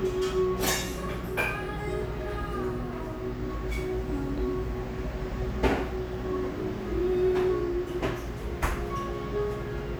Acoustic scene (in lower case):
cafe